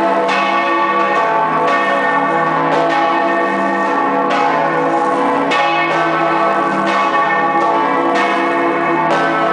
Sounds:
Church bell

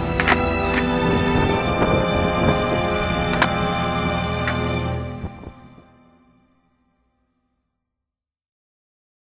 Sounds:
Music

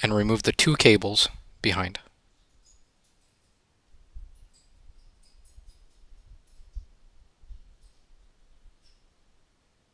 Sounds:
Speech

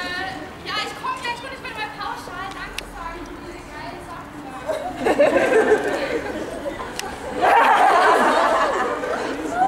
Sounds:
Speech

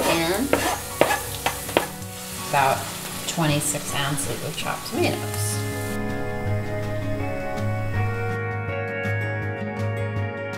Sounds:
inside a small room, Speech, Music

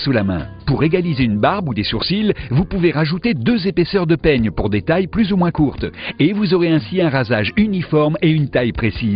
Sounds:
Music, Speech

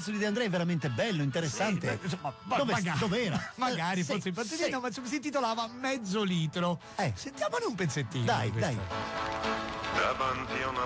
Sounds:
Speech, Radio, Music

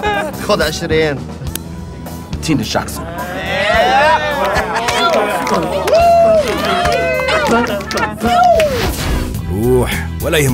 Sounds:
Speech, Music

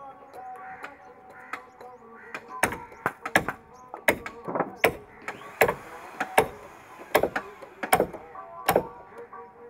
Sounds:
hammering nails

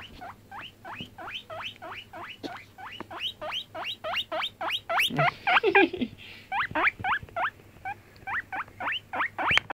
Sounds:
Oink

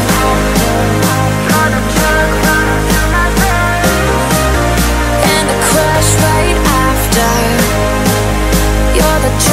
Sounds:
Music

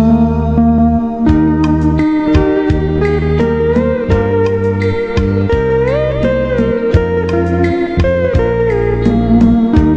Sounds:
Guitar, Music, Plucked string instrument, Musical instrument, Strum, Acoustic guitar, Bass guitar

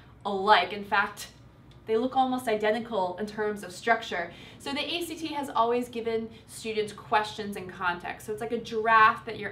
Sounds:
Speech

